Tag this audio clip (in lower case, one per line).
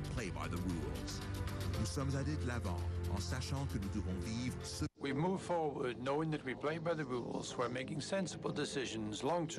speech
man speaking
music
monologue